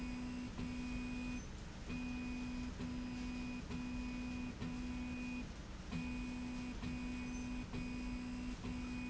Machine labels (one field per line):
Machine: slide rail